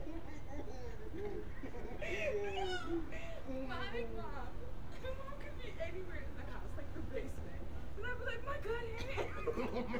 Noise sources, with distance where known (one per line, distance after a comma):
person or small group talking, near